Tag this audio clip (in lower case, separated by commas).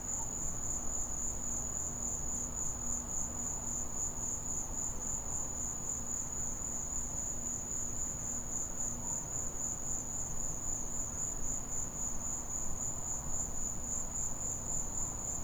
animal, wild animals, insect